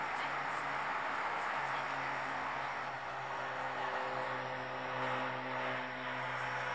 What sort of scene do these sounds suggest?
street